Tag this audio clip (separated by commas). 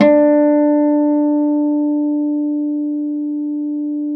Acoustic guitar, Plucked string instrument, Musical instrument, Guitar, Music